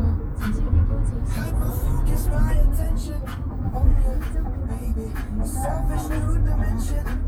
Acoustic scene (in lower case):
car